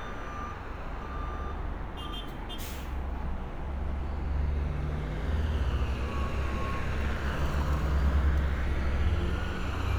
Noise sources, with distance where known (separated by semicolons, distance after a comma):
large-sounding engine, near; reverse beeper, near